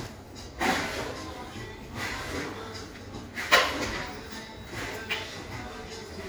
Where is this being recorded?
in a cafe